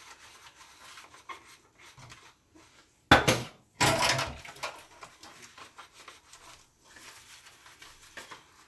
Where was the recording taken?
in a kitchen